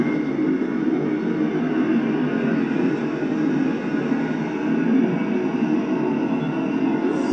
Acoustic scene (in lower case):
subway train